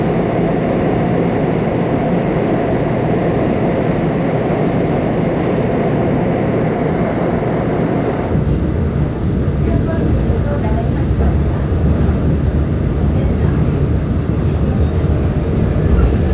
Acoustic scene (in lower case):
subway train